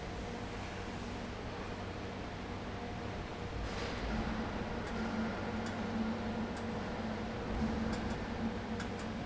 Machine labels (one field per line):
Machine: fan